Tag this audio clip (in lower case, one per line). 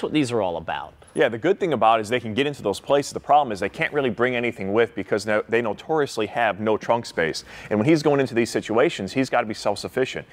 speech